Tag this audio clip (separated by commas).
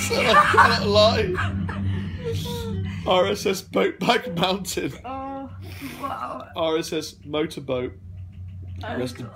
Speech